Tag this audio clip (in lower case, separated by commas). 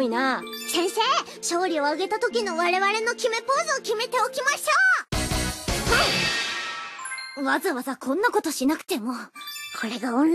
speech, music